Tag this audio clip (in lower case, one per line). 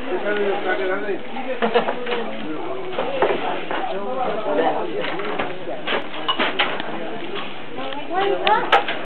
speech